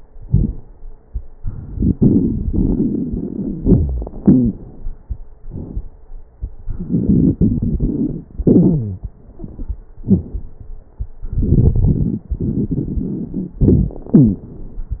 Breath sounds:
Inhalation: 1.74-3.58 s, 6.72-8.24 s, 11.25-13.62 s
Exhalation: 3.59-4.56 s, 8.38-9.07 s, 13.60-14.49 s
Wheeze: 3.59-4.10 s, 4.20-4.54 s, 8.38-9.07 s, 14.15-14.49 s
Crackles: 1.74-3.58 s, 6.72-8.24 s, 11.25-13.62 s

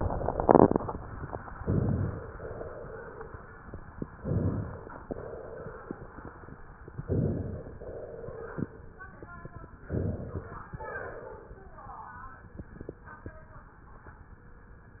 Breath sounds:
Inhalation: 1.59-2.26 s, 4.17-5.05 s, 7.02-7.76 s, 9.89-10.68 s
Exhalation: 2.31-3.55 s, 5.03-6.19 s, 7.80-8.96 s, 10.78-11.78 s
Crackles: 1.59-2.26 s, 4.17-5.05 s, 7.02-7.76 s, 9.89-10.68 s

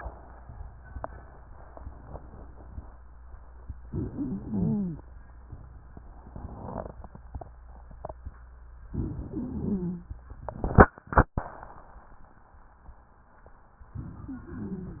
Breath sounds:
Inhalation: 3.85-5.02 s, 8.89-10.06 s, 13.95-15.00 s
Stridor: 3.85-5.02 s, 8.89-10.06 s, 13.95-15.00 s

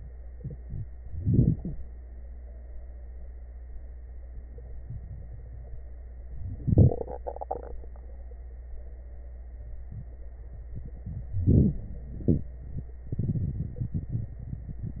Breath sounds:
Inhalation: 1.03-1.79 s, 6.57-6.94 s, 11.39-11.82 s
Exhalation: 12.20-12.55 s
Crackles: 11.39-11.82 s

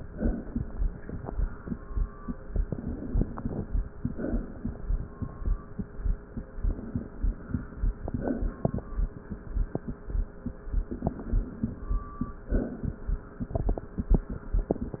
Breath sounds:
Inhalation: 2.64-3.59 s, 6.59-7.99 s, 10.91-11.86 s
Exhalation: 0.03-0.98 s, 3.94-4.89 s, 8.02-8.94 s, 12.47-13.43 s

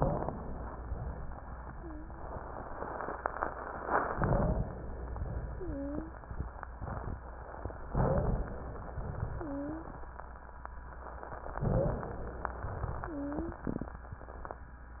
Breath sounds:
Inhalation: 4.12-4.71 s, 7.93-8.48 s, 11.63-12.18 s
Wheeze: 0.00-0.27 s, 1.71-2.30 s, 4.12-4.71 s, 5.54-6.13 s, 7.93-8.48 s, 9.37-9.96 s, 11.63-12.18 s, 13.07-13.66 s

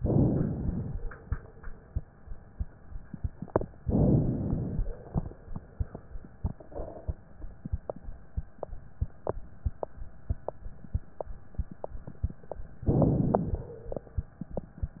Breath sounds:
Inhalation: 0.00-0.99 s, 3.81-4.84 s, 12.86-13.79 s

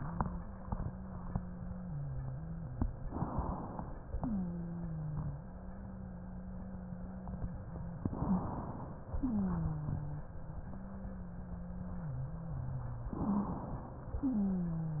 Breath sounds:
Inhalation: 3.06-4.12 s, 8.10-9.17 s, 13.13-14.19 s
Wheeze: 0.00-2.98 s, 4.12-8.01 s, 9.22-13.11 s, 14.21-15.00 s

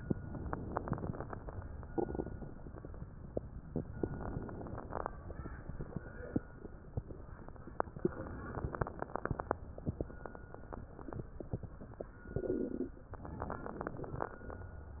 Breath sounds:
Inhalation: 0.21-1.44 s, 3.83-5.07 s, 8.12-9.60 s, 13.15-14.63 s
Crackles: 0.21-1.44 s, 3.83-5.07 s, 8.12-9.60 s, 13.15-14.63 s

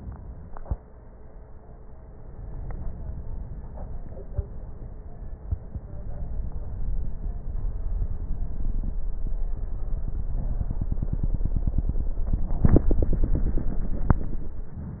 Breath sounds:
Inhalation: 2.10-3.60 s

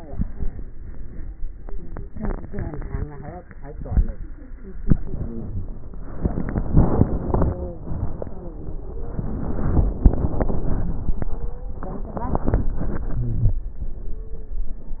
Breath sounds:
Inhalation: 4.79-5.86 s
Wheeze: 5.08-5.69 s, 7.04-7.81 s, 13.14-13.63 s
Stridor: 2.68-3.34 s, 8.90-10.03 s, 11.31-12.13 s, 14.10-14.58 s

